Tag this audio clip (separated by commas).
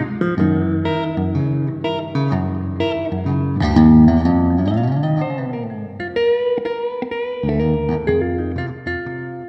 Music, Bass guitar